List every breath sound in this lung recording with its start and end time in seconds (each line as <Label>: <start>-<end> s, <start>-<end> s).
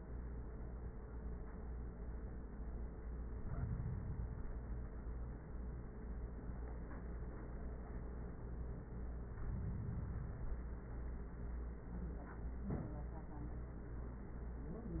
No breath sounds were labelled in this clip.